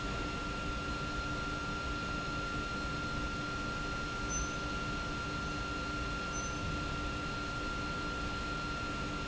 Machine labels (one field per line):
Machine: pump